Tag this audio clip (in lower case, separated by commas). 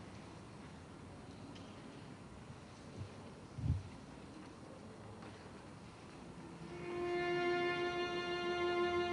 musical instrument, music, fiddle